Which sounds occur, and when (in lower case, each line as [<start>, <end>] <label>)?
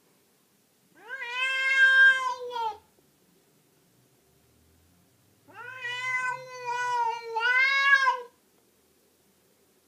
[0.00, 9.85] background noise
[1.00, 2.82] meow
[5.51, 8.47] meow